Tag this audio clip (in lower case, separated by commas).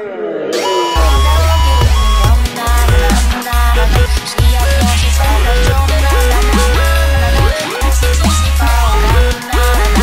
music, dubstep